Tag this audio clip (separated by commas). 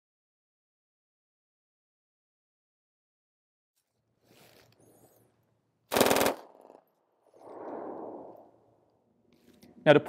machine gun shooting